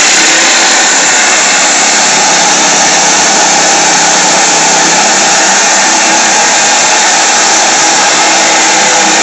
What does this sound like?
An engine going